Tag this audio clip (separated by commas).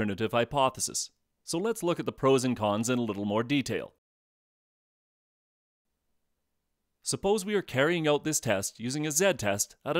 Speech